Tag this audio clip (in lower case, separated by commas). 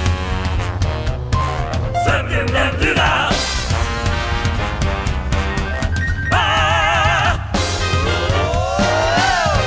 music